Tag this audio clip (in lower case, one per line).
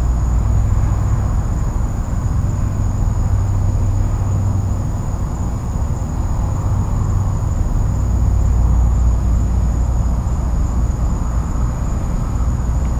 insect
wild animals
animal